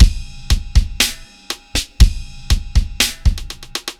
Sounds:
percussion, music, musical instrument, drum kit

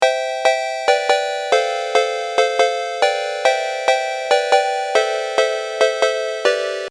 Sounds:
alarm, telephone, ringtone

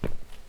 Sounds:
footsteps

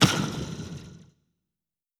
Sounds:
explosion

